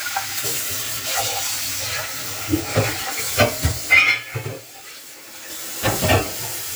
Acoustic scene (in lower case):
kitchen